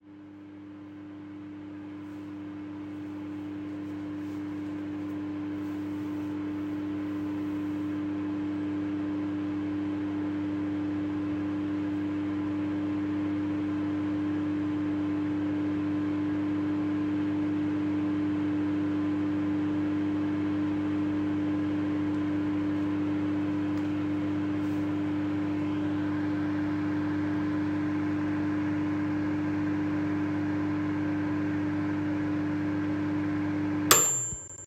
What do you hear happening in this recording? Microwave was running to the end with its ringtone